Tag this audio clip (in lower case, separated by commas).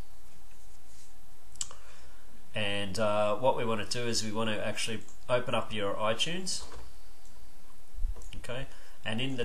clicking, speech